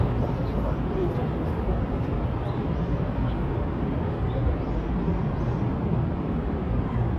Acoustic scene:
park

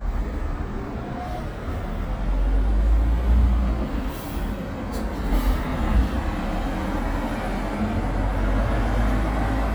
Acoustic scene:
street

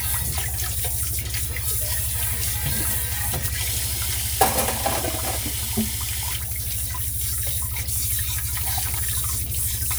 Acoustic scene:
kitchen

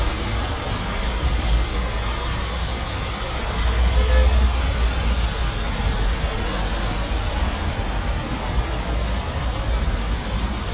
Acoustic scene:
street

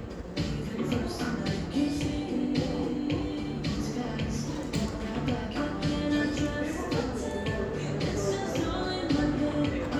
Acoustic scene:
cafe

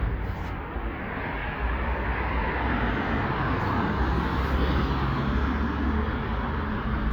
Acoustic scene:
street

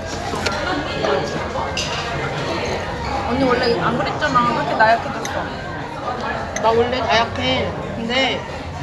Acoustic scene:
restaurant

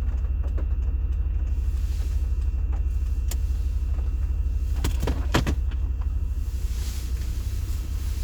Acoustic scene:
car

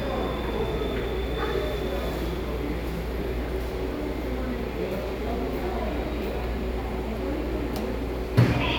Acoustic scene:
subway station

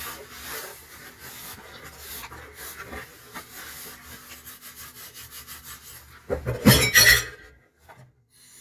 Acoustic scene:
kitchen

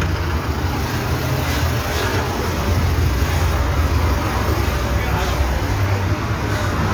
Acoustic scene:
street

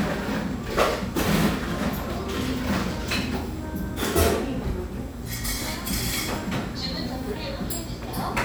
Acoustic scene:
cafe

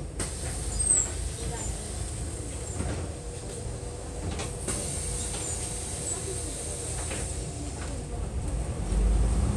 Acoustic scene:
bus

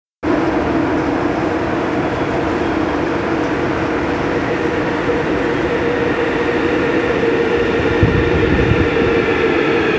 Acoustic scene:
subway station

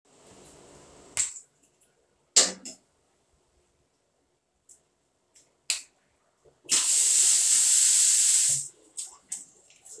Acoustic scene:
restroom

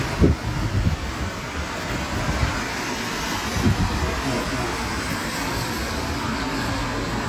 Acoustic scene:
street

